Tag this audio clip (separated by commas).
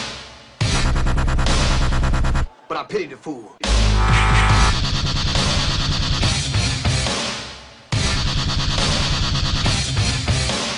Electronic music, Dubstep, Music, Speech